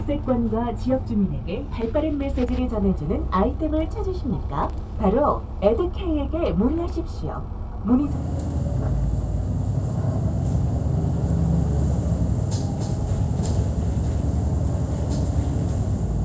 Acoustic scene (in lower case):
bus